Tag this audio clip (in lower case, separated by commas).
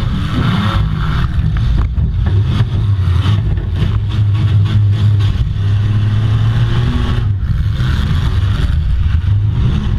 vehicle, motor vehicle (road), car